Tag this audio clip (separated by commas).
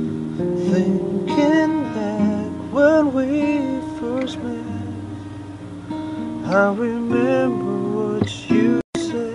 Guitar, playing acoustic guitar, Strum, Plucked string instrument, Music, Acoustic guitar, Musical instrument